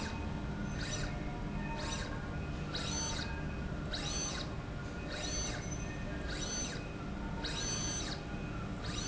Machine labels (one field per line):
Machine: slide rail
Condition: abnormal